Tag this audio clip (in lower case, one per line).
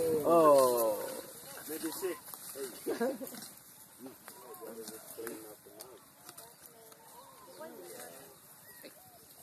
speech